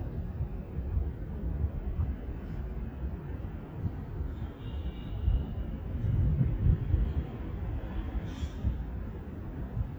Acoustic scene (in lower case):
residential area